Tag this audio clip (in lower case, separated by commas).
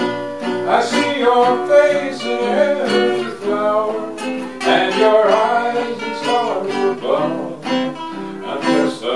guitar, plucked string instrument, musical instrument, music